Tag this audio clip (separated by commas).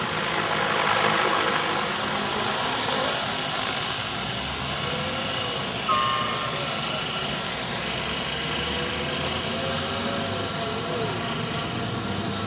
Aircraft, Vehicle